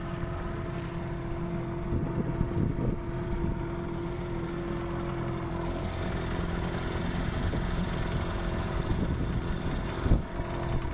A motorboat coasting on water with a loud engine